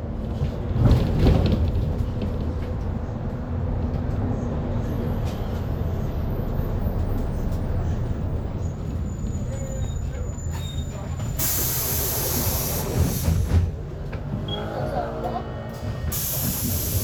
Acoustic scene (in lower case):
bus